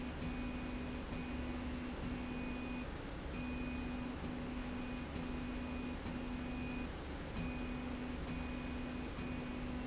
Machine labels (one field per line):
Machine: slide rail